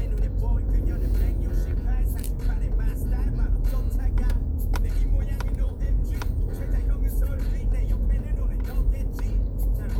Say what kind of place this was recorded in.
car